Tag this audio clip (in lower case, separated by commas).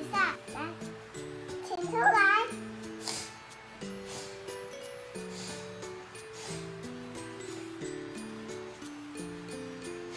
baby babbling